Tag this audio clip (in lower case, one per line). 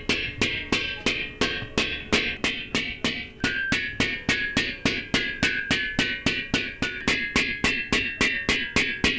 music